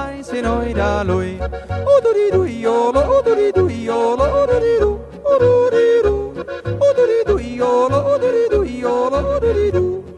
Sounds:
yodelling

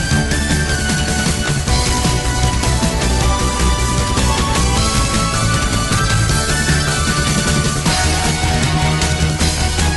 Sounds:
Music

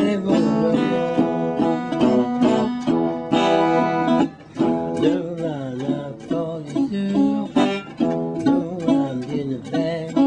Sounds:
Music

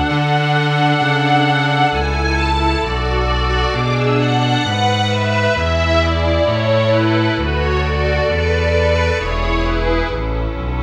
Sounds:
Music, Tender music, Sad music

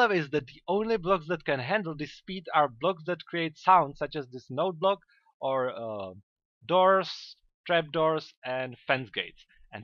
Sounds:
Speech

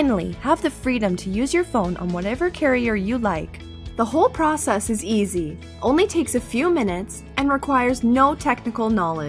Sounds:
Speech, Music

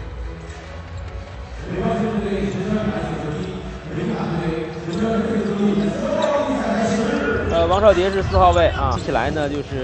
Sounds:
basketball bounce

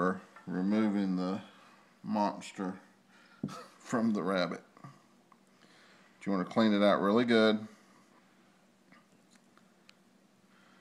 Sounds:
Speech

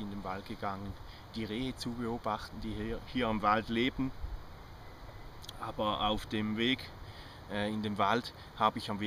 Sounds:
Speech

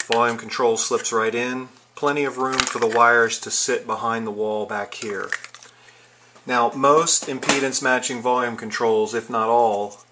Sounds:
Speech

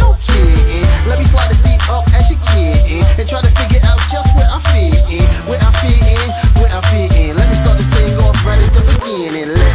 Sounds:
Music, Static

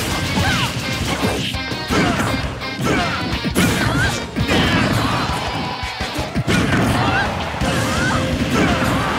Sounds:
crash, Music

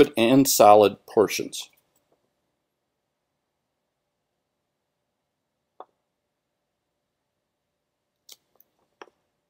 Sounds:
Speech

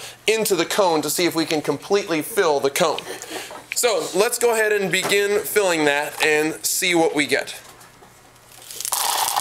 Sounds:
Speech, inside a small room

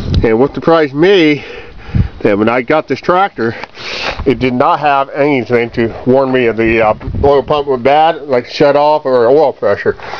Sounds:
Speech

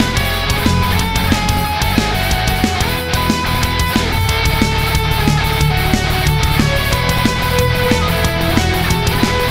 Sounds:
Strum, Electric guitar, Plucked string instrument, Guitar, Music, Musical instrument

